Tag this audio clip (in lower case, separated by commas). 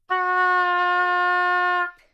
music, musical instrument, wind instrument